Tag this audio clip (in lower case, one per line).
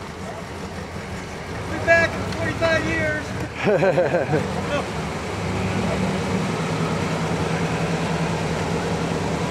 speech
motor vehicle (road)
bus
vehicle